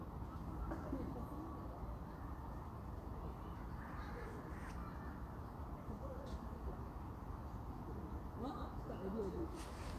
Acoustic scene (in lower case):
park